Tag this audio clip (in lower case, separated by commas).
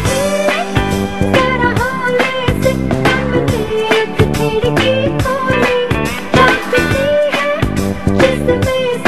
funny music, music